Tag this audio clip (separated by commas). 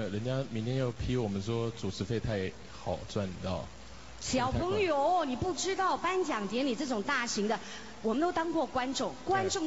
Speech